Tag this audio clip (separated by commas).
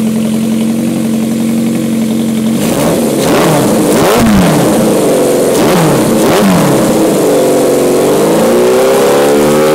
Medium engine (mid frequency), Vehicle, vroom, Accelerating